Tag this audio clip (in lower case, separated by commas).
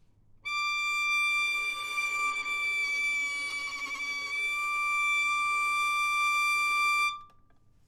bowed string instrument, musical instrument, music